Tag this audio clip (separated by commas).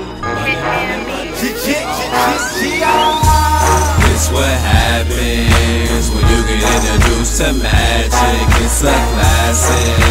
Music, Speech